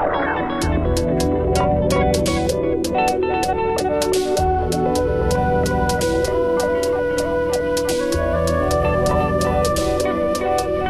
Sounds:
music

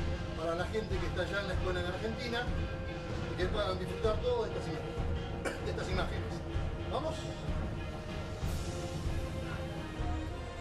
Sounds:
speech
music

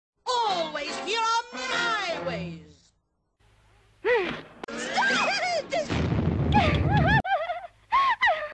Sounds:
music
speech

